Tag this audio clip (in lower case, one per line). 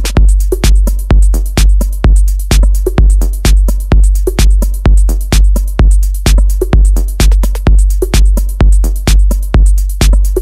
music
techno
electronic music